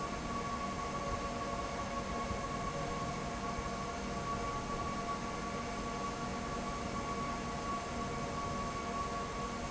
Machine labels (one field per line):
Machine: fan